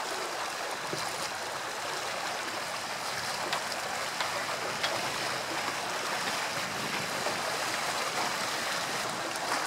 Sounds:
Ocean, Vehicle, Sailboat, Boat

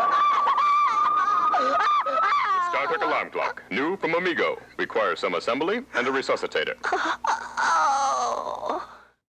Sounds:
Speech

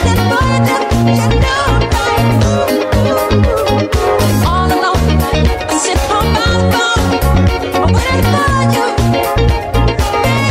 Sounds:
Female singing, Music

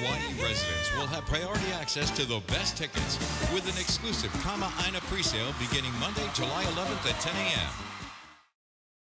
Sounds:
Music, Speech

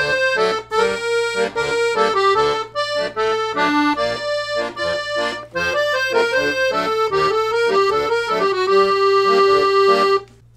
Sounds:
playing accordion

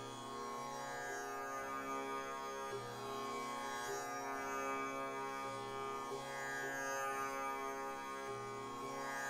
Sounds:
Music

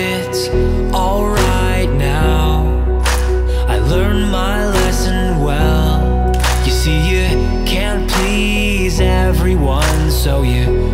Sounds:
Music

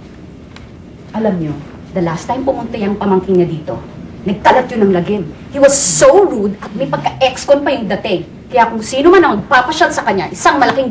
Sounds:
Speech

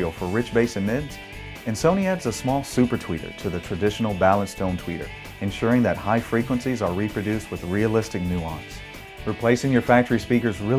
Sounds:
Music, Speech

